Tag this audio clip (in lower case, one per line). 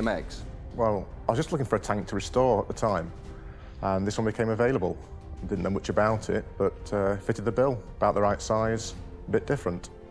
music
speech